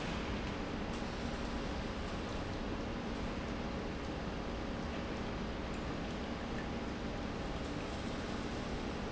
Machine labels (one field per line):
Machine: pump